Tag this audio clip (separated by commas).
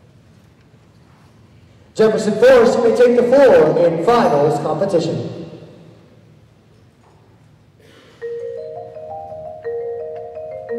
Marimba, Mallet percussion, Glockenspiel